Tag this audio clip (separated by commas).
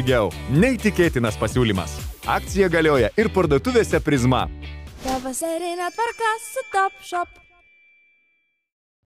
Speech, Music